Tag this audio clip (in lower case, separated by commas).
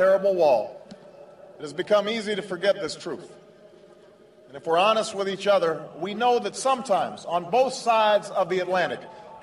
speech, male speech, narration